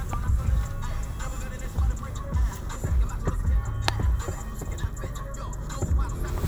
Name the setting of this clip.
car